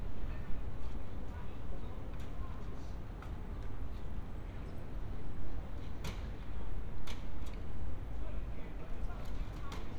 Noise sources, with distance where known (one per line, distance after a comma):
person or small group talking